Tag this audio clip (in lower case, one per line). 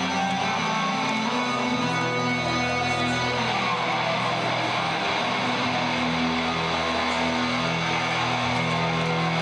music